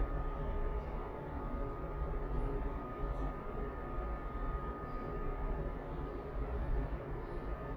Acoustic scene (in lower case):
elevator